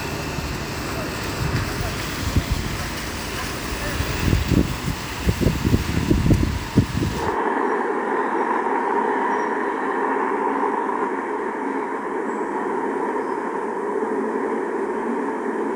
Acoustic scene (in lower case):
street